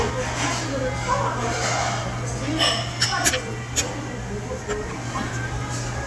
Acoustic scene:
restaurant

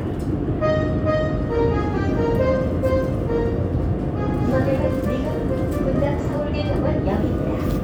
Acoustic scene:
subway train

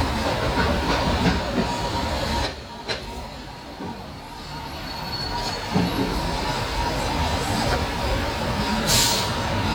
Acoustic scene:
street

